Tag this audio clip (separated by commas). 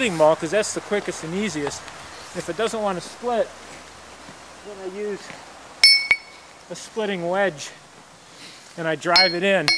Speech